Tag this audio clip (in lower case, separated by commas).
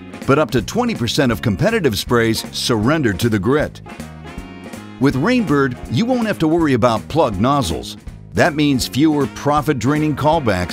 speech, music